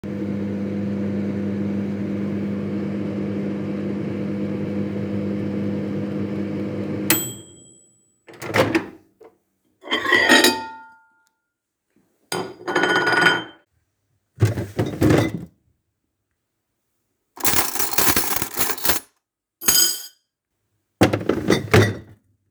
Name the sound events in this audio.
microwave, cutlery and dishes, wardrobe or drawer